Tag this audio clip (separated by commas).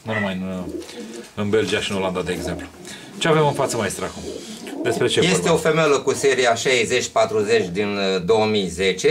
dove, Coo, Bird, Bird vocalization